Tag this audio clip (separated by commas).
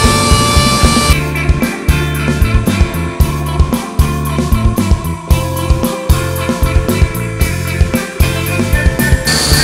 Drill, Music, inside a small room